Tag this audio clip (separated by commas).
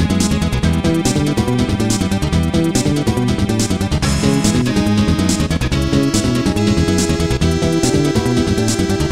Music, Video game music